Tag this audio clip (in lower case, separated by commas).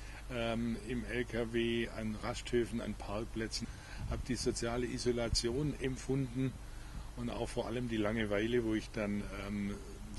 speech